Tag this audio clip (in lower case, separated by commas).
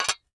dishes, pots and pans, domestic sounds